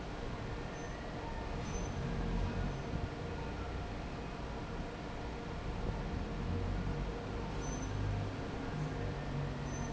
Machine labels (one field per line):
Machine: fan